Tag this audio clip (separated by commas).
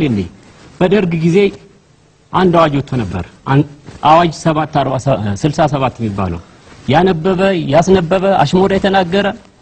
Speech, monologue, man speaking